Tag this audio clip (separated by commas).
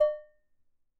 dishes, pots and pans, Domestic sounds